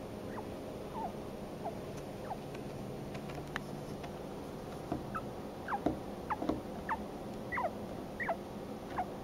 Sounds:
chinchilla barking

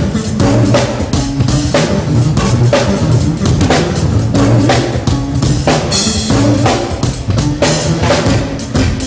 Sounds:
Music

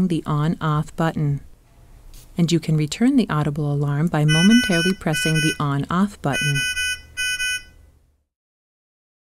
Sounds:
Speech

